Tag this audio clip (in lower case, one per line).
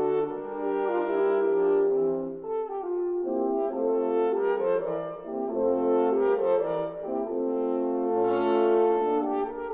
french horn
brass instrument